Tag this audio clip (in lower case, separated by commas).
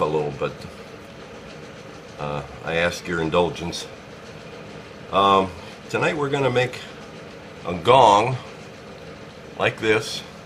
speech